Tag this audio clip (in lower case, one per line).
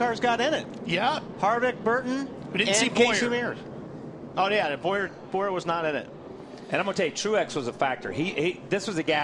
speech